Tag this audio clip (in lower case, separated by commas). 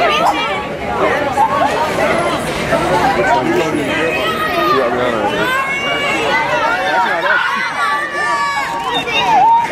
outside, urban or man-made, speech